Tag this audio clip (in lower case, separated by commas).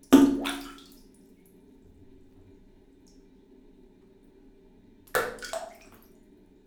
splatter, liquid